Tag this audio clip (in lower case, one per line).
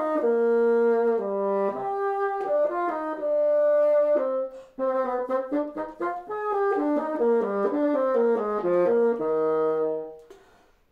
playing bassoon